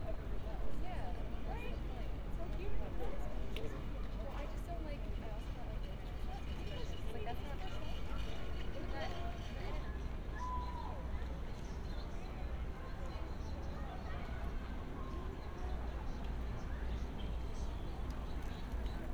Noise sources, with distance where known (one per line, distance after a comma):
person or small group talking